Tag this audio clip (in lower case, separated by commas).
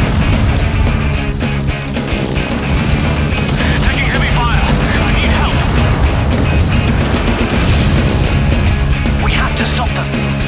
pop, speech, explosion, music